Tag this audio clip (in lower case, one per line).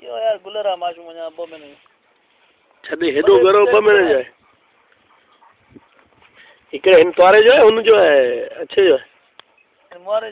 speech